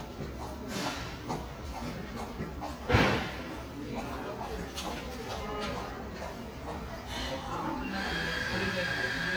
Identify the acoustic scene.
crowded indoor space